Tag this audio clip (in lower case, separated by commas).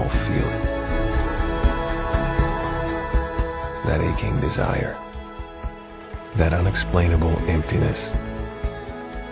music, speech